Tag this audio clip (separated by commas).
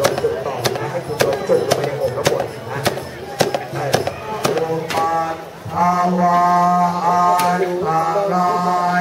Speech